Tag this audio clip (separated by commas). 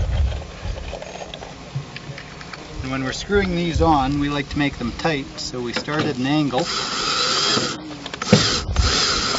Speech